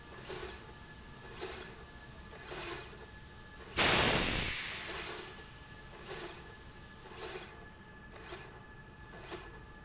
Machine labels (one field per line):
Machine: slide rail